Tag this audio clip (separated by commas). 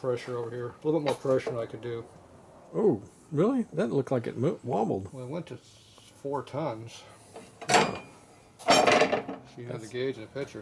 inside a large room or hall, Speech